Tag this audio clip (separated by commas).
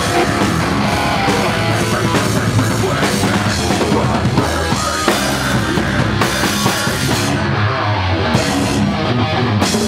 inside a large room or hall, Singing, Music